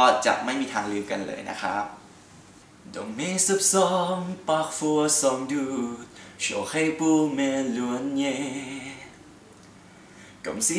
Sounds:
Speech, Male singing

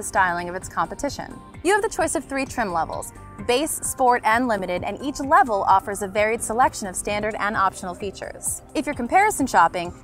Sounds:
Speech, Music

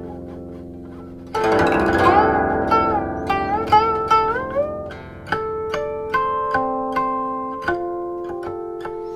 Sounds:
Music

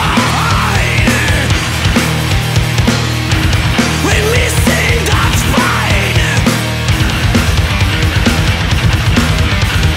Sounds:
Music

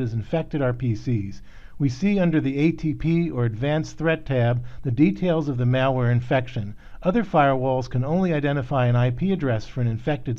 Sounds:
Speech

